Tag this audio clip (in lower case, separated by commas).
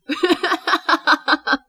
laughter, human voice